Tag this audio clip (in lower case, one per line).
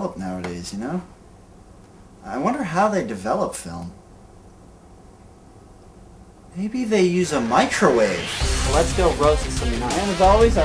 music
speech